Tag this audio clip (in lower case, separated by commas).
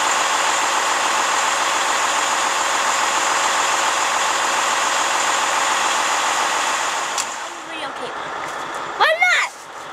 truck, vehicle, speech